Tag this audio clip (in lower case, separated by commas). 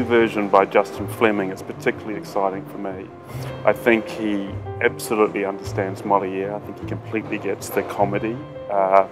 music, speech